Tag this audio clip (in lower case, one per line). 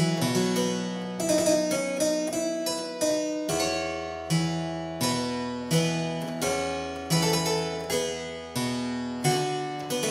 music
playing harpsichord
harpsichord